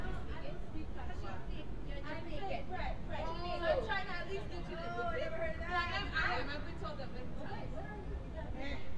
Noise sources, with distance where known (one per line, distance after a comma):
person or small group talking, near